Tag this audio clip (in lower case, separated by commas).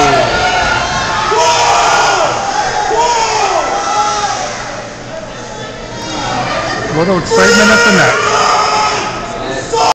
speech